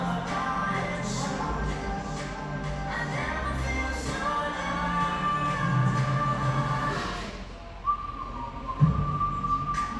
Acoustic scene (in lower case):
cafe